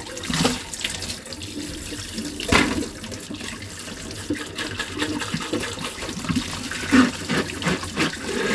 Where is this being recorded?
in a kitchen